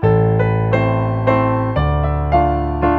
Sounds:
keyboard (musical), music, piano, musical instrument

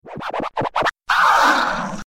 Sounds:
musical instrument, scratching (performance technique), music

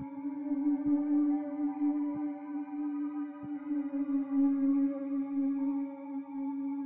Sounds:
musical instrument, music

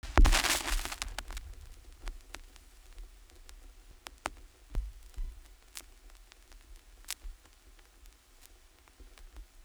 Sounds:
crackle

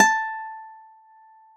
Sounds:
musical instrument, music, guitar, plucked string instrument, acoustic guitar

